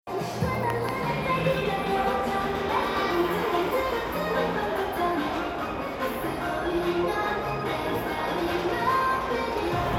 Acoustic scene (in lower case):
crowded indoor space